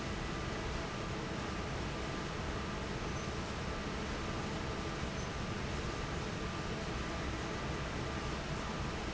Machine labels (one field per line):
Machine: fan